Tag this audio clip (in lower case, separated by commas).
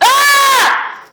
screaming, human voice